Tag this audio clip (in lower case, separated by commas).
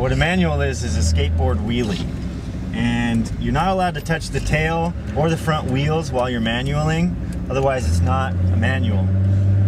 speech